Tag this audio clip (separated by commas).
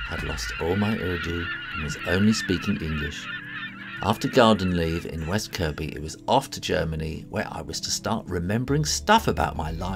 Music, Speech